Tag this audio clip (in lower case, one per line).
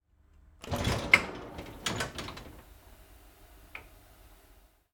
train
sliding door
door
home sounds
vehicle
rail transport